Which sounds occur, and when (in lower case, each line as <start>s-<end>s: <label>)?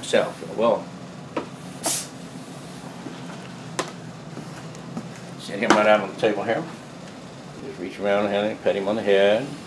0.0s-0.8s: male speech
0.0s-9.6s: mechanisms
1.3s-1.4s: generic impact sounds
1.8s-2.0s: hiss
1.8s-1.9s: generic impact sounds
3.8s-3.9s: generic impact sounds
4.3s-4.5s: generic impact sounds
4.9s-5.0s: generic impact sounds
5.4s-6.6s: male speech
5.7s-5.9s: generic impact sounds
7.0s-7.1s: tick
7.5s-9.6s: male speech